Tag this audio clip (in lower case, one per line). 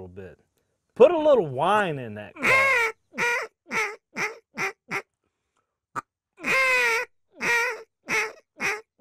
speech